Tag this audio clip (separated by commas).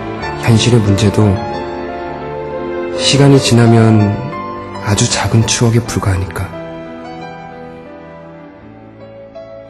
Speech, Music